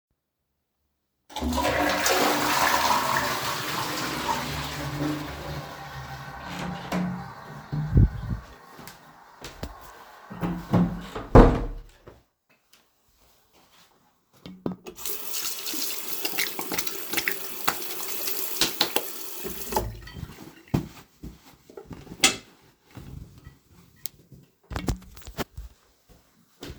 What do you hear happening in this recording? I flushed the toilet, opened the toilet door, and went into the bathroom. There, I washed my hands and dried them with a towel.